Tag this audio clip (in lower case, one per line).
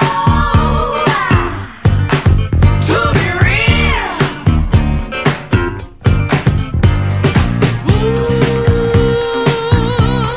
music
funk